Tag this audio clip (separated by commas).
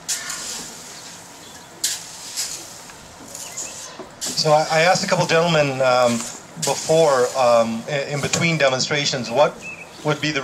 Speech